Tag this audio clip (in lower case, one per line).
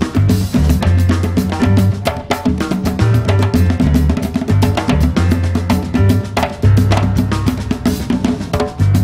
drum
percussion